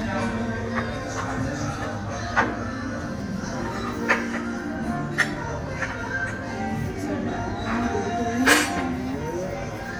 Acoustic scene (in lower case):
restaurant